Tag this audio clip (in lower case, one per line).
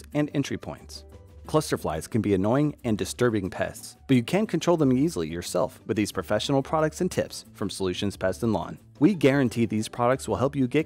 housefly buzzing